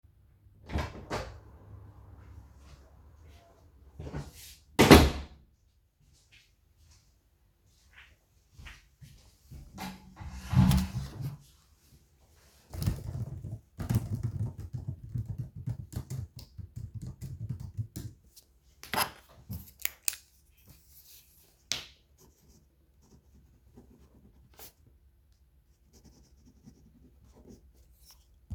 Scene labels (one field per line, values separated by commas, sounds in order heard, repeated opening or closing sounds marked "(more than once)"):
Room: bedroom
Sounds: door (more than once), footsteps, keyboard typing